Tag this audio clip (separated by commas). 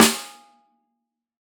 Snare drum, Percussion, Drum, Musical instrument, Music